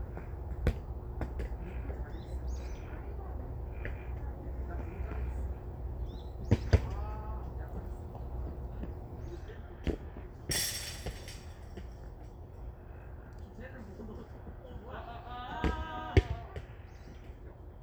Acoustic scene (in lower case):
park